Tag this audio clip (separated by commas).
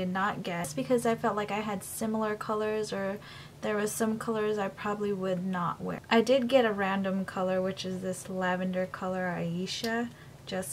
Speech